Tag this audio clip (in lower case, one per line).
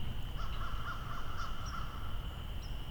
wild animals
bird
crow
animal